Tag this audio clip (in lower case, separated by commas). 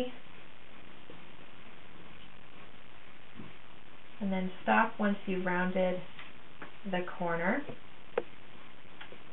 inside a small room, speech